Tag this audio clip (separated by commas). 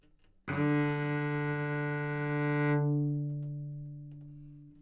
Bowed string instrument, Musical instrument, Music